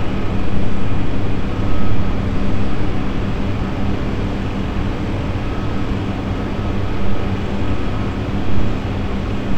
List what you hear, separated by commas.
reverse beeper